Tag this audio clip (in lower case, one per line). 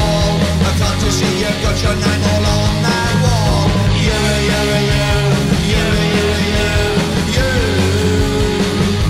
music
punk rock